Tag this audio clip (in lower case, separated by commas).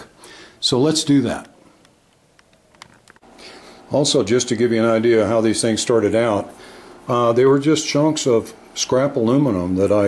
speech